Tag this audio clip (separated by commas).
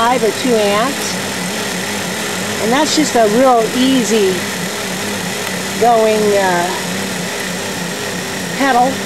Speech, Vehicle